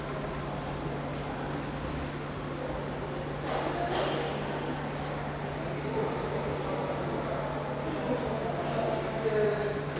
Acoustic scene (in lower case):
subway station